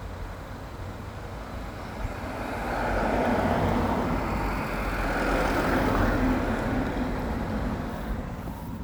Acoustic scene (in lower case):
street